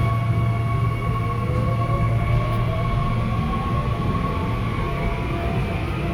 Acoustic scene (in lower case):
subway train